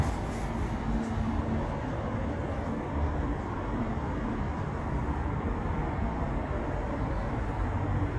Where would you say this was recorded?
in a residential area